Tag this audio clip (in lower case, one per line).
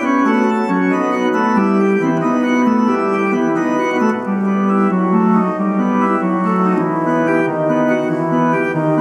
hammond organ
organ